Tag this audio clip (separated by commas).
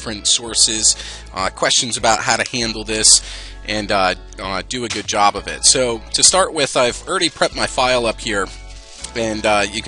Musical instrument, Speech, Music